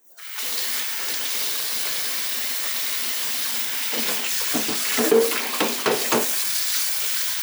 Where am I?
in a kitchen